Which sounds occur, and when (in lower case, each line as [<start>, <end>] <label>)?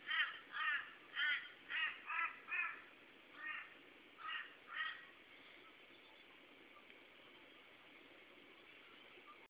[0.00, 0.90] caw
[0.00, 9.45] wind
[1.12, 1.51] caw
[1.69, 2.90] caw
[3.34, 3.67] caw
[4.16, 4.49] caw
[4.67, 5.11] caw
[5.63, 5.72] bird vocalization
[5.93, 6.27] bird vocalization
[6.74, 6.82] bird vocalization
[6.85, 6.99] generic impact sounds
[7.35, 7.57] bird vocalization
[8.41, 8.61] bird vocalization
[8.81, 8.97] bird vocalization
[9.25, 9.45] bird vocalization